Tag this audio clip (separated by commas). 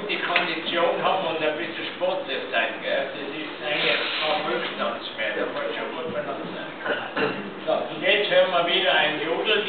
Speech